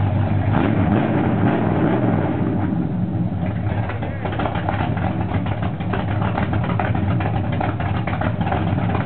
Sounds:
Vehicle

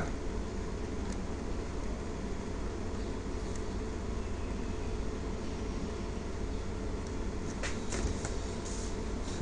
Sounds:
Speech

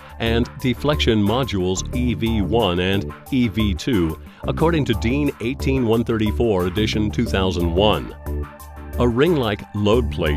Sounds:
Speech, Music

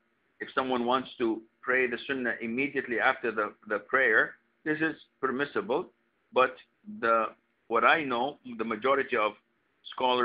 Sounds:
Speech

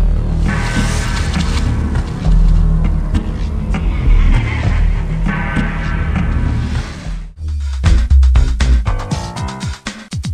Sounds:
Music

